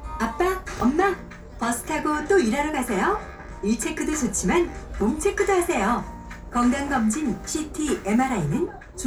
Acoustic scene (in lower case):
bus